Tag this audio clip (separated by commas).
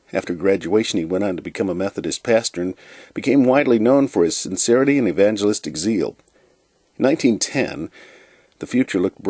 Speech